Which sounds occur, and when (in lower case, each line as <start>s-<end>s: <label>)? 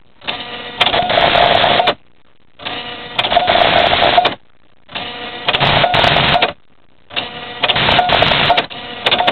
0.0s-9.3s: mechanisms
7.1s-9.3s: printer